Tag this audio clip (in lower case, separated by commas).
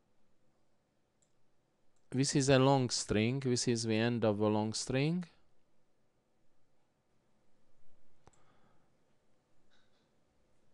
speech